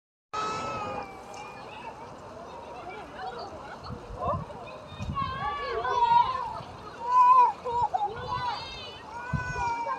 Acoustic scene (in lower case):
park